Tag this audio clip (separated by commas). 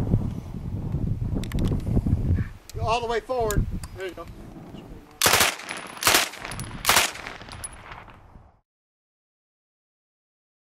Machine gun, Gunshot